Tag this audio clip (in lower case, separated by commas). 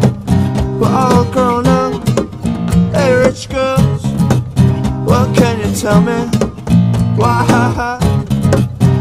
music, radio